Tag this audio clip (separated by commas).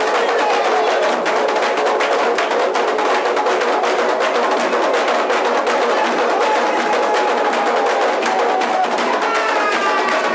Music